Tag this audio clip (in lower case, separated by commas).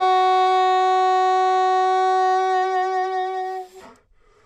wind instrument, music, musical instrument